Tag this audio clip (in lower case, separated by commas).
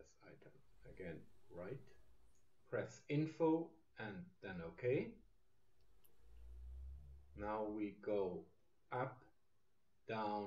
speech